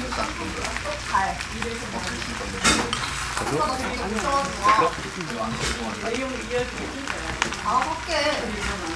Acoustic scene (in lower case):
restaurant